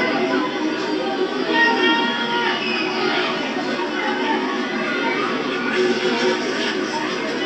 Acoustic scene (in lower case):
park